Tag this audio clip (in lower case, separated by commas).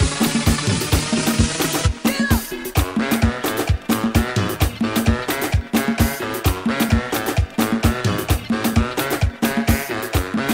music, rhythm and blues